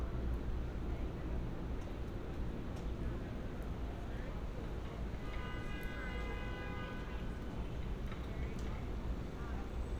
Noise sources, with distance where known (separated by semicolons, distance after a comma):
car horn, far